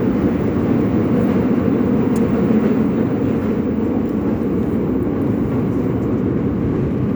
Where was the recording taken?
on a subway train